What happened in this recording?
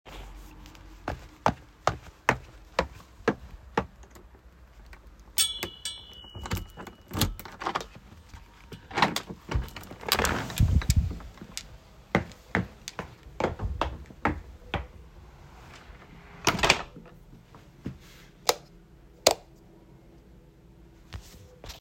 I walked down the hallway, jingled my keys, and opened the front door. I then closed the door and turned on the light.